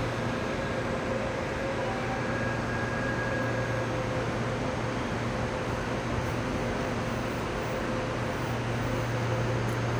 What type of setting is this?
subway station